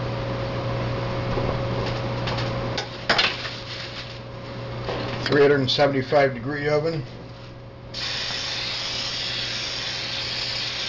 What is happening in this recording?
Dishes are clanging together a man speaks and something is sprayed